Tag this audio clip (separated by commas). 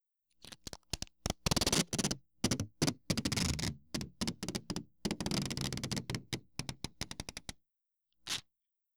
duct tape, home sounds